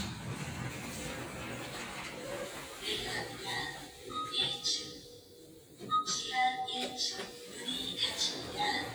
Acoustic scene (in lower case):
elevator